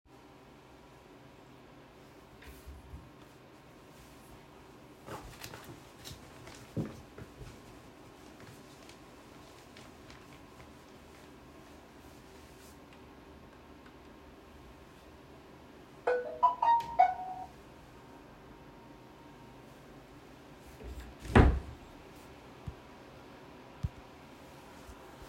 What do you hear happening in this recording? I opened my wardrobe and looked through my clothing. After a little while, I heard a notification from my phone. I closed the wardrobe.